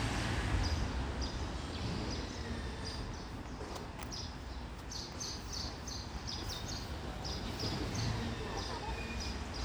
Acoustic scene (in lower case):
residential area